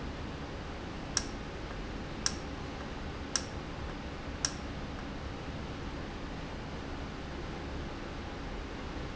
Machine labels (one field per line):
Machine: valve